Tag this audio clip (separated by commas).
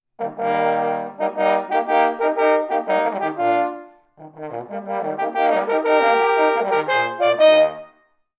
Musical instrument, Music, Brass instrument